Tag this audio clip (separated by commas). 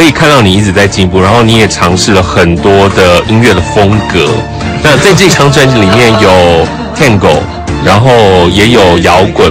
Music, Speech